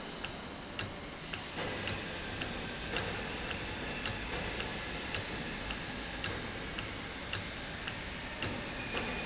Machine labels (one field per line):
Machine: valve